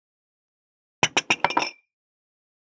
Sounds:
Glass

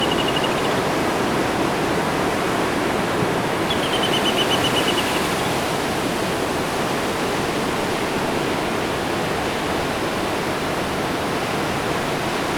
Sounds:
Water, Ocean

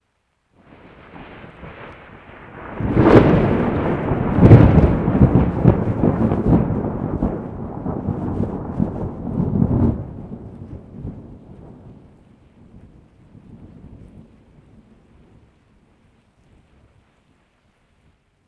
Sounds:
Thunderstorm, Thunder

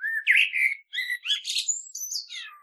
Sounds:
Wild animals, Animal, Bird

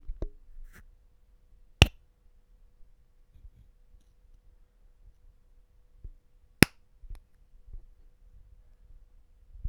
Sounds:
Tap

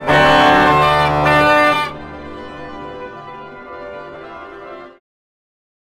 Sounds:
Keyboard (musical), Organ, Musical instrument, Music

